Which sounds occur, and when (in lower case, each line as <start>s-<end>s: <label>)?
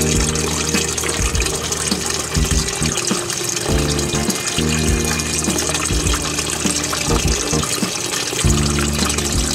0.0s-9.5s: music
0.0s-9.5s: pump (liquid)